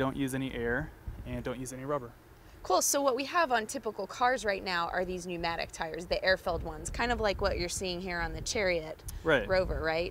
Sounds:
Speech

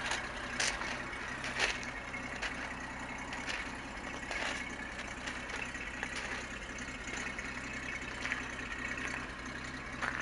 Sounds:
Vehicle, Truck

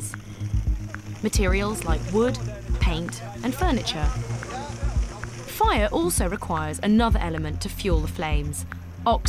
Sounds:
Music, Speech

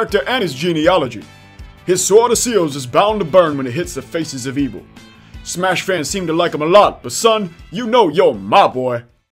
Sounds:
Music, Speech

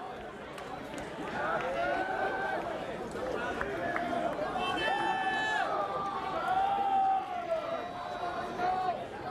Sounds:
man speaking

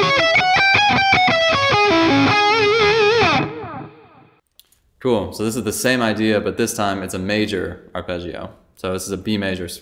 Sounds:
Electric guitar, Music, Plucked string instrument, Musical instrument, Speech, Strum, Guitar

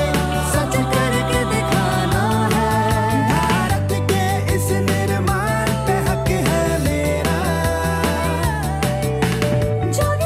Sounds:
Music

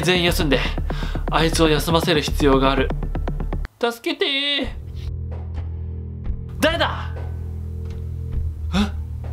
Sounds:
people battle cry

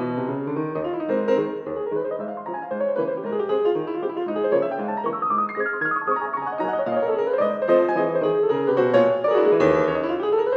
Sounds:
Music

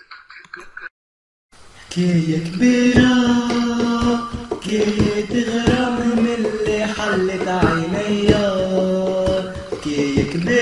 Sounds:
Music

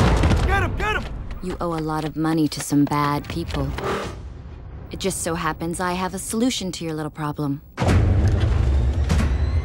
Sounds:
Speech

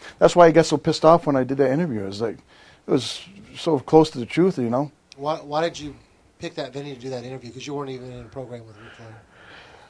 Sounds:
Speech

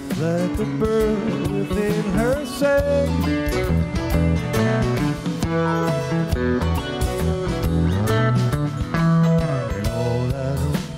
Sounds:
Music

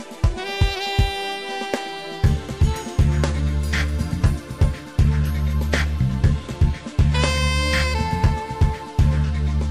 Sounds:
Music

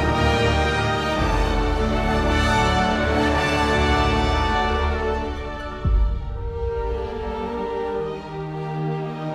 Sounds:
Music, Orchestra

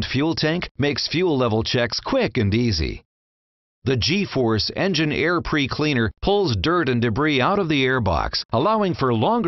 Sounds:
Speech

